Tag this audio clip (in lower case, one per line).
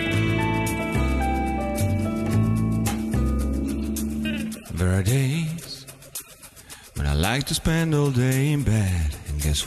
music